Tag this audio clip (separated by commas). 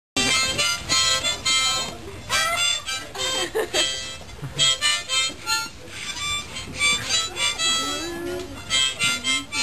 playing harmonica